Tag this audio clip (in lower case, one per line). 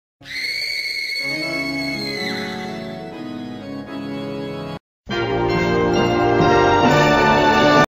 television
music